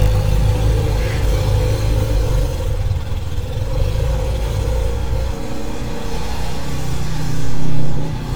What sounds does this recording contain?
small-sounding engine